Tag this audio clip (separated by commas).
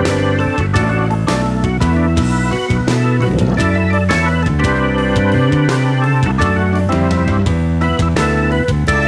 Music